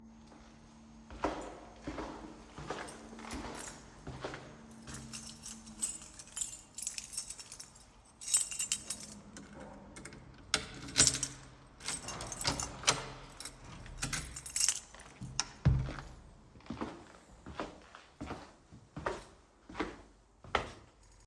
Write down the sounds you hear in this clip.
footsteps, keys, door